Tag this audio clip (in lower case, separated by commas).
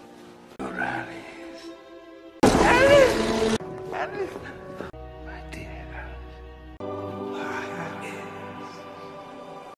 speech, music